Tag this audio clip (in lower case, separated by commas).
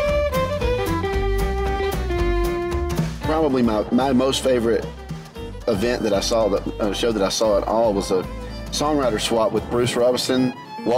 blues, speech, music